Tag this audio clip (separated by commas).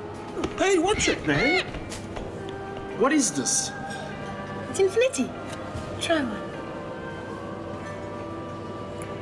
mastication, Music, Speech